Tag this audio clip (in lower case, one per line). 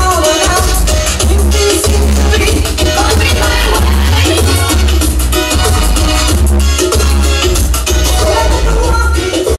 music